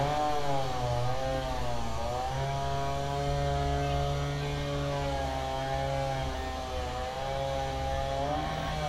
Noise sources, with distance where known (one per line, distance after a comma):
chainsaw, near